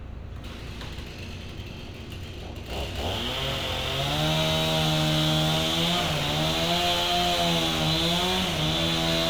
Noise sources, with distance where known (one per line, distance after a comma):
chainsaw, near